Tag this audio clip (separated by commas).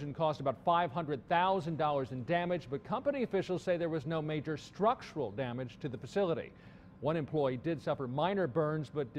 Speech